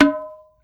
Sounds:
Percussion, Music, Musical instrument

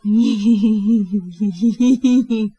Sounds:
Laughter, Human voice

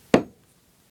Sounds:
Tools, Hammer

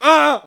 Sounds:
Human voice, Screaming

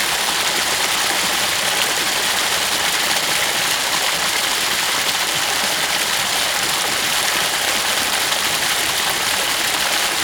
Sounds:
Water, Stream

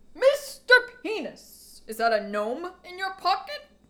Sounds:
Shout, Human voice, Yell, Speech, Female speech

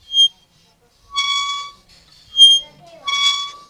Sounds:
Squeak

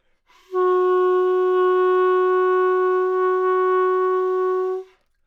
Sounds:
Music, woodwind instrument, Musical instrument

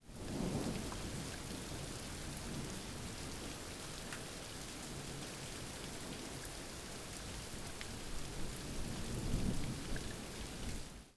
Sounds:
Water, Thunder, Thunderstorm, Rain

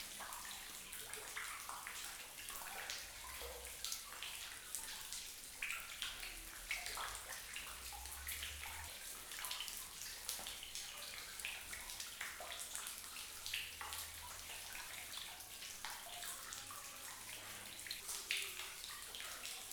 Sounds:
Rain, Trickle, Human voice, Stream, Water, Pour, Liquid

